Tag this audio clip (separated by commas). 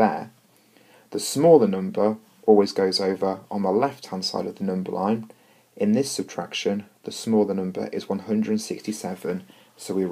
Speech